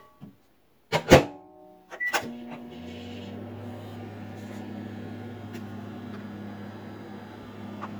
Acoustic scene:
kitchen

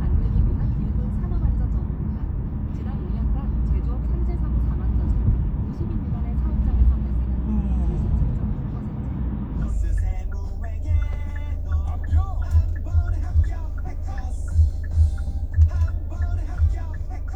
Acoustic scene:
car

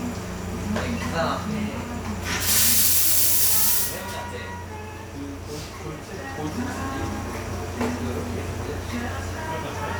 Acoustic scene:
cafe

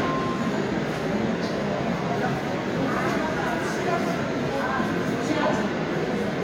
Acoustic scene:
subway station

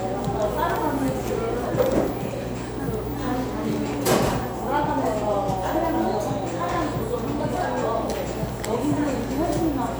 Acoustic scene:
cafe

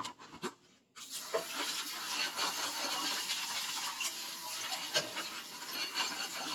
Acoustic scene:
kitchen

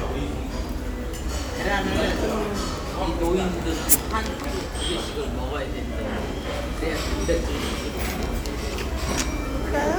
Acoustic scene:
restaurant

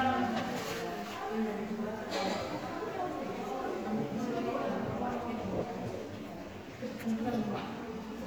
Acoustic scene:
crowded indoor space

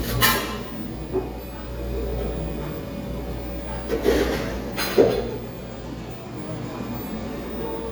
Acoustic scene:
cafe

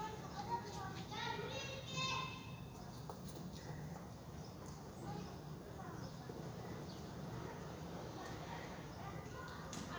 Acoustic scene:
residential area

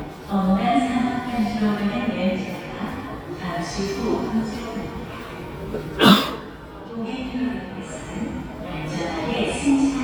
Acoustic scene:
subway station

